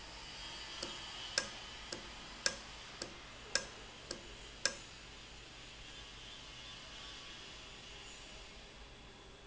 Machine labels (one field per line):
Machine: valve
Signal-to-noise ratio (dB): 6 dB